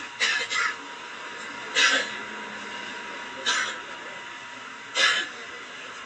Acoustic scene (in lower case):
bus